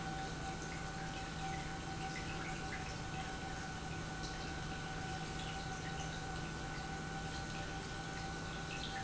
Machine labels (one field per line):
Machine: pump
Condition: normal